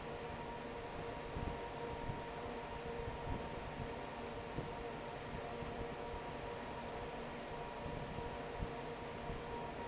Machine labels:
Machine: fan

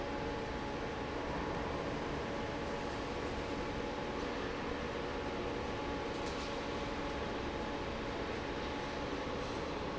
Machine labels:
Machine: fan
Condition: normal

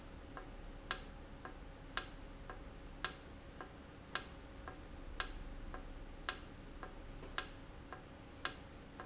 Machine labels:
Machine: valve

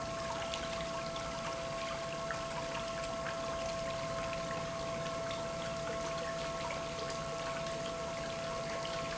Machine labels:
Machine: pump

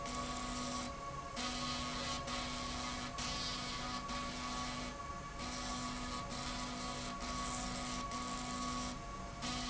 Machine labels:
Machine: slide rail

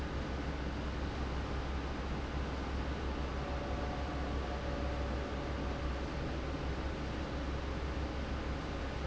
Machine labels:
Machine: fan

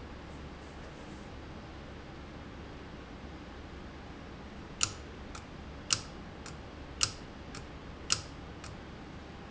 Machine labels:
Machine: valve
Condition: abnormal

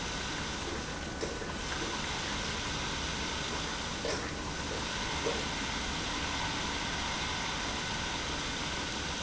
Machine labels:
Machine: pump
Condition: abnormal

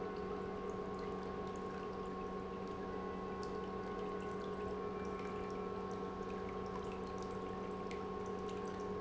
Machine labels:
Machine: pump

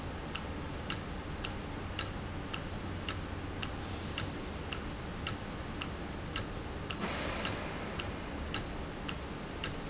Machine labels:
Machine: valve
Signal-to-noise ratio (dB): -6 dB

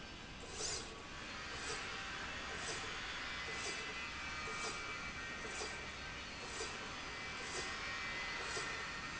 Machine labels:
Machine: slide rail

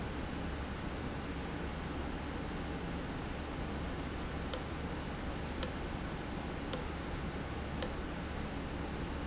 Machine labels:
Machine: valve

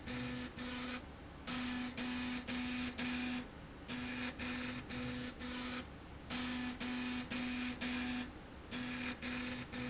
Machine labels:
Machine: slide rail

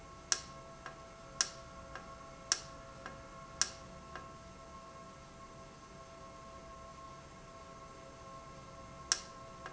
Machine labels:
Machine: valve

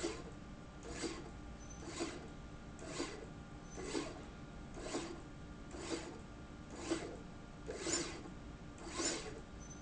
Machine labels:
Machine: slide rail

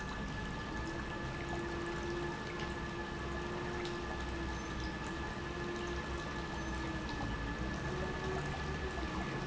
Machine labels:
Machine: pump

